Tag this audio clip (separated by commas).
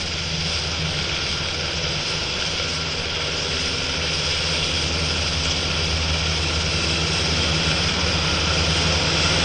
airscrew, outside, urban or man-made, Vehicle